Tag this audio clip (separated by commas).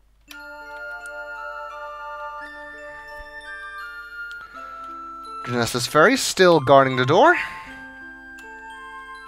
Music, Speech